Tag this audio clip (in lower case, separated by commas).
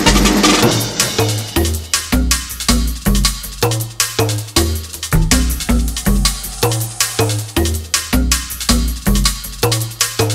music, drum, drum roll